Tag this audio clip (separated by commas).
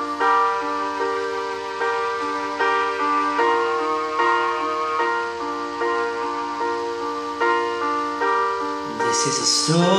Keyboard (musical)